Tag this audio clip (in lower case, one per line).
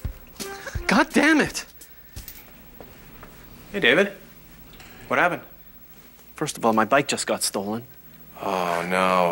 speech